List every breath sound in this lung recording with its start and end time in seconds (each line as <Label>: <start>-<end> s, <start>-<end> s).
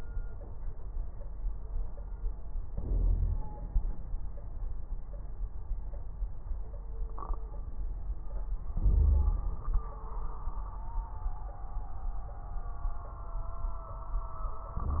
Inhalation: 2.68-3.56 s, 8.74-9.60 s
Exhalation: 3.53-4.51 s, 9.60-10.09 s
Wheeze: 2.81-3.40 s, 8.74-9.60 s